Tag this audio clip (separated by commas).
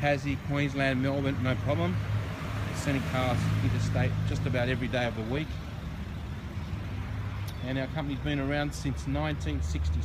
Vehicle, Car, Speech, outside, urban or man-made